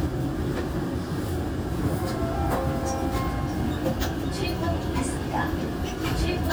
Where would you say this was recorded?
on a subway train